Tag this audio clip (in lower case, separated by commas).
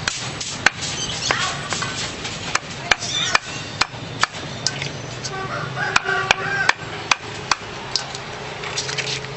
speech